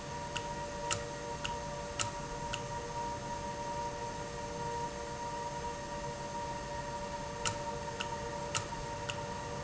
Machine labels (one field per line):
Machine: valve